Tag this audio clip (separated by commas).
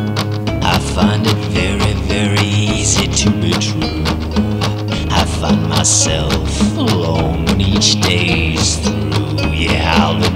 Music